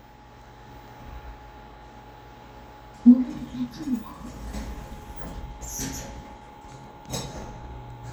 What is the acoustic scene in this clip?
elevator